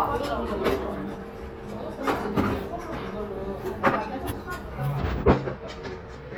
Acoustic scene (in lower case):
restaurant